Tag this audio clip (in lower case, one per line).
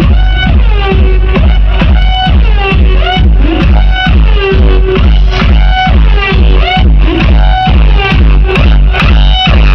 sound effect